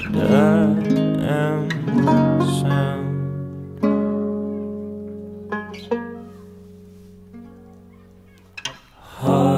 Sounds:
music

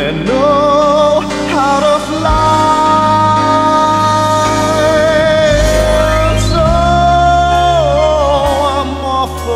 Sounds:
christian music
christmas music
music

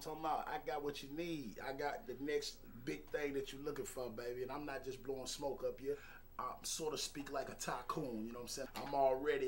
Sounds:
speech

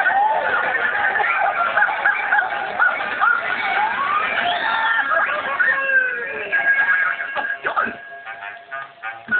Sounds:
speech

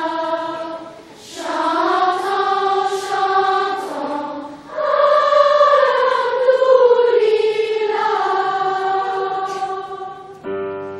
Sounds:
singing choir

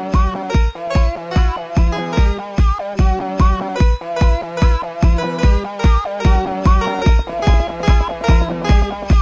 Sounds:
electronic music
techno
music

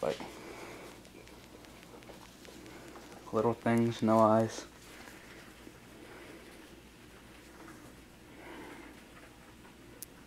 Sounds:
speech

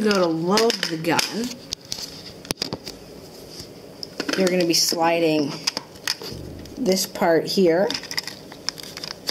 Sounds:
speech
crackle

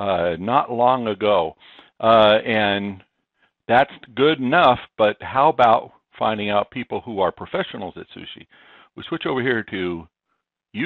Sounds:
speech

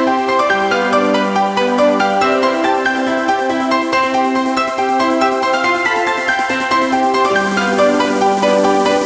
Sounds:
theme music
music
background music
dance music
independent music

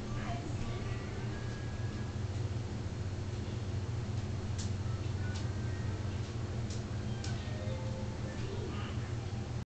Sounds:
music
speech

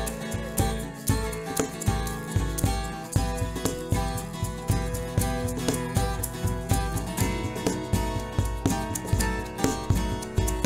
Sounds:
background music
music

